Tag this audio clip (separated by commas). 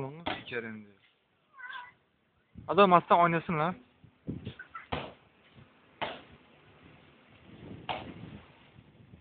pets, Dog, Animal, Speech